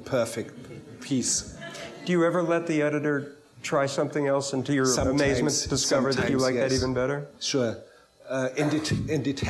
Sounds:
Speech, man speaking

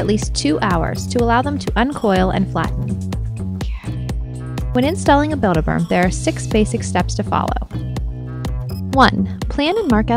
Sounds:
Speech, Music

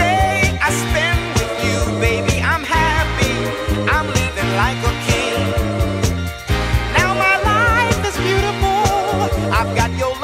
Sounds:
Music, Funk

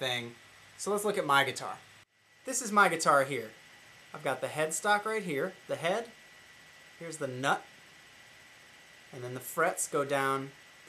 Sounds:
Speech

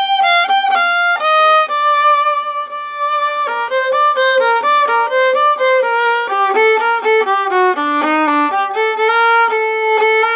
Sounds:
Violin, Musical instrument, Music

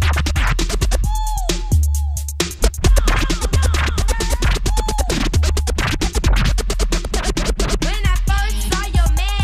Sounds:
Music, Scratching (performance technique)

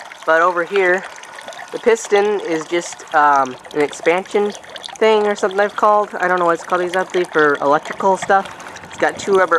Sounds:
Water

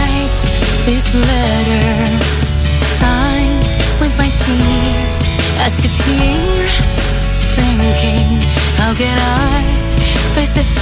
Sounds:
Music, Sad music

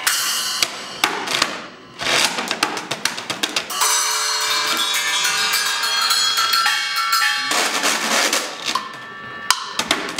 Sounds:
Percussion, Wood block, Drum

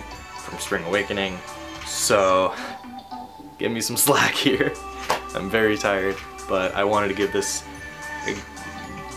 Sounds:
Music, Speech

